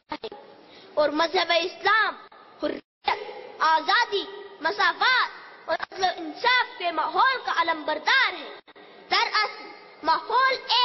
A woman giving a speech and shouting